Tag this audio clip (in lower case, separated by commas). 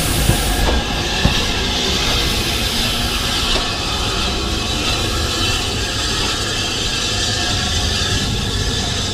railroad car, rail transport, train